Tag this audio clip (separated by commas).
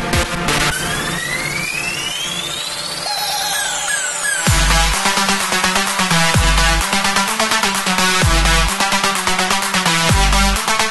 Roll, Music